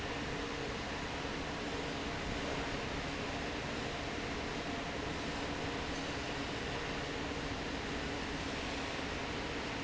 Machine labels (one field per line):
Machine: fan